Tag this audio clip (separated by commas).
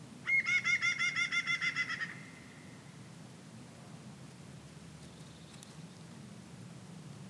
Wild animals, Bird, Animal